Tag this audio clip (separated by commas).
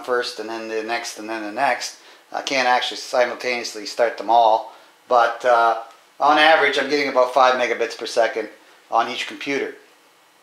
inside a small room, Speech